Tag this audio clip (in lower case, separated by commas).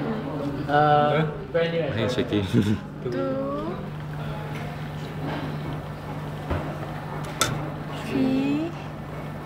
speech